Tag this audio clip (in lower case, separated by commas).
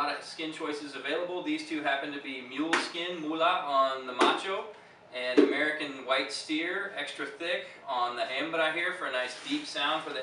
speech, percussion